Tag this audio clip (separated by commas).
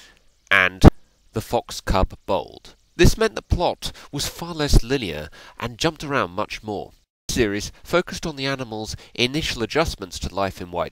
Speech